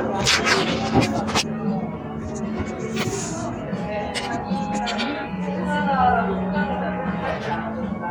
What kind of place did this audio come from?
cafe